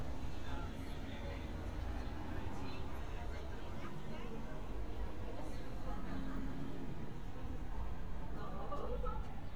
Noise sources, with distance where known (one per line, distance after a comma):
background noise